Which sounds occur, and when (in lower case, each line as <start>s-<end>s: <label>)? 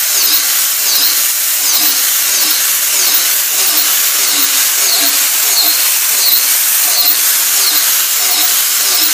0.0s-9.1s: drill